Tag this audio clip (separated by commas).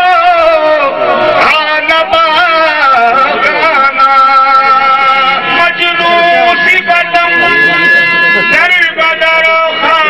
Speech, Music, Traditional music